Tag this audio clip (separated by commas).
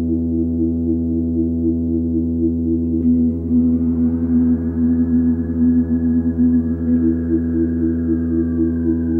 Ambient music